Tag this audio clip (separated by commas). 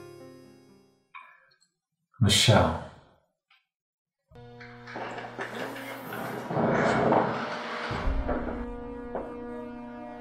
Music, Speech